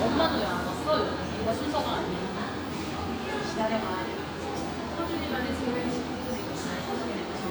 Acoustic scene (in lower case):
crowded indoor space